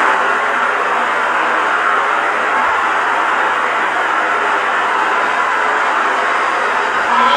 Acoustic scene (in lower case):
elevator